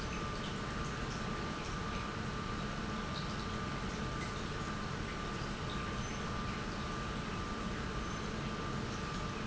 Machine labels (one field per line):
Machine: pump